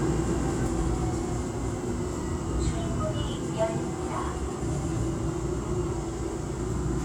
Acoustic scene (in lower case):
subway train